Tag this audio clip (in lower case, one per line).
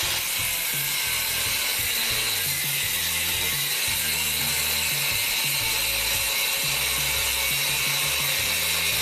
tools
music